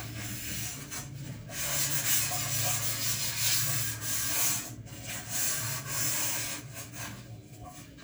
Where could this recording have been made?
in a kitchen